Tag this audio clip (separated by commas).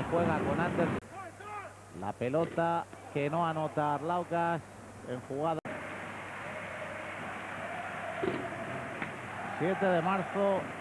basketball bounce